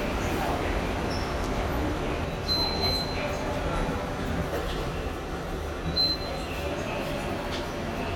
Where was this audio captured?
in a subway station